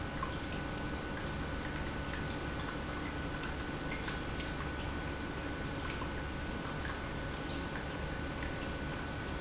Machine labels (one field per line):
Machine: pump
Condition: normal